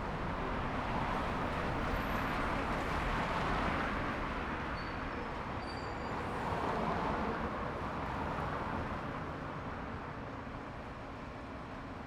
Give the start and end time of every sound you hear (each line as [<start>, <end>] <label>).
[0.00, 1.15] motorcycle
[0.00, 1.15] motorcycle engine accelerating
[0.00, 4.55] bus wheels rolling
[0.00, 12.07] bus
[0.00, 12.07] car
[0.00, 12.07] car wheels rolling
[1.70, 3.07] bus brakes
[4.49, 6.49] bus brakes
[6.15, 6.99] bus compressor
[7.00, 12.07] bus engine idling